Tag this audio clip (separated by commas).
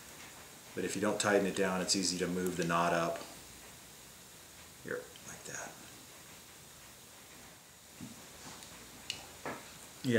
Speech, inside a small room